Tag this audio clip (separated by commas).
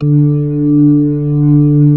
Keyboard (musical), Music, Organ, Musical instrument